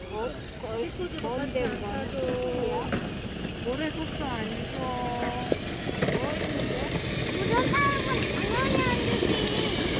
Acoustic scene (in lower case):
residential area